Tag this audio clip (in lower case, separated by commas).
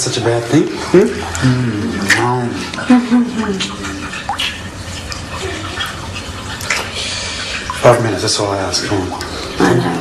inside a small room, speech, drip